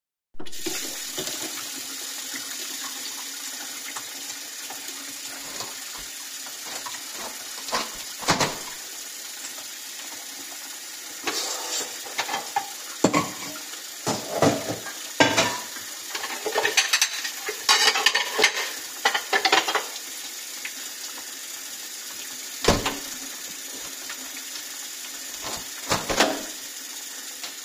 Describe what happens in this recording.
I run tap water, open the window, move some cutlery and dishes, then close the window.